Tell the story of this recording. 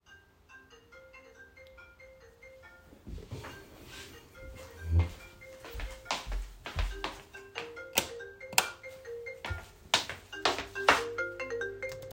The phone rang so I got up from the chair by moving it then I walked towrds the other bedroom, switched the light on and finally picked up the phone.